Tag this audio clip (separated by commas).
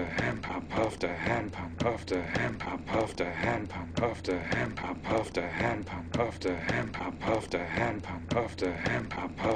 Music